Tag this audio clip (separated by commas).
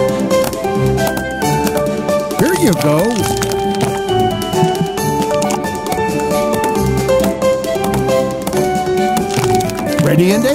Speech, Music